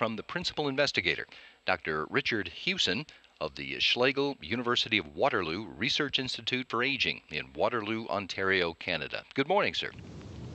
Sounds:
speech

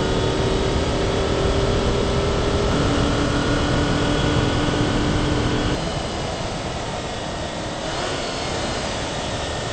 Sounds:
motor vehicle (road)
vehicle
car

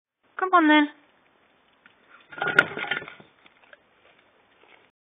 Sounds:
speech

